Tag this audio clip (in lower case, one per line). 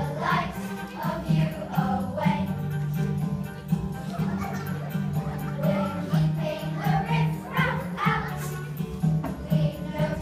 music